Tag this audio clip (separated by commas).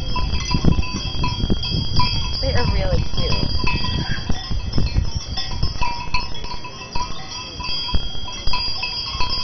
bovinae cowbell